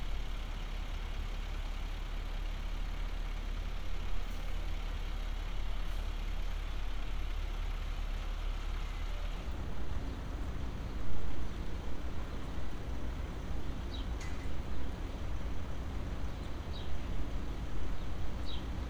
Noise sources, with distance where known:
large-sounding engine

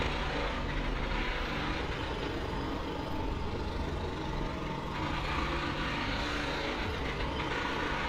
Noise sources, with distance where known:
jackhammer, near

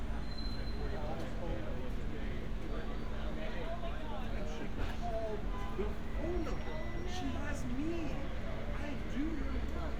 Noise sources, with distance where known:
engine of unclear size, far; car horn; person or small group talking, near

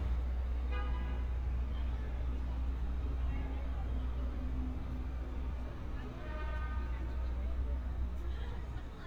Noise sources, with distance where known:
car horn, near; person or small group talking, far

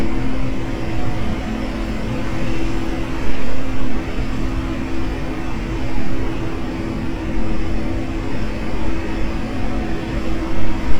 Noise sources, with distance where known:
engine of unclear size, near; unidentified impact machinery

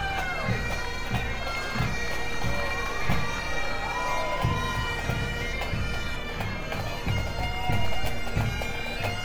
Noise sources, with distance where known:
music from a fixed source; large crowd, near

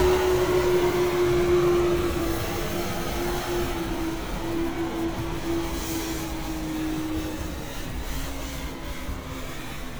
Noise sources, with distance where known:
unidentified powered saw, near

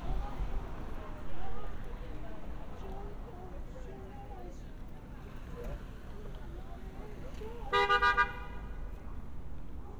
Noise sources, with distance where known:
car horn, near

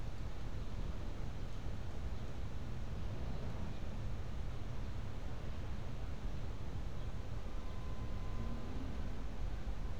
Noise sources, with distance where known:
car horn, far

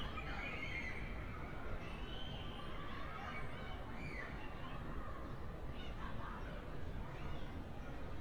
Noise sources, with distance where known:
unidentified human voice, far

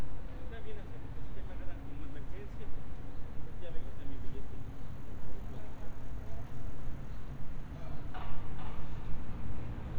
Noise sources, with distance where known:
unidentified human voice, far

